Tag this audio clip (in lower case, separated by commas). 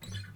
acoustic guitar, musical instrument, plucked string instrument, guitar, music